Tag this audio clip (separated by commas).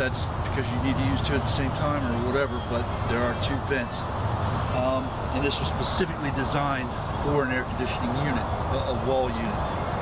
Speech